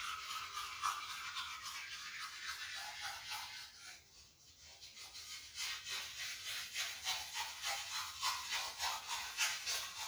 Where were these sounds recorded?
in a restroom